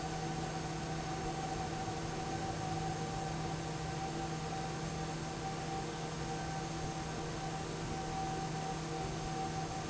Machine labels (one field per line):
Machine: fan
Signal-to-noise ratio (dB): -6 dB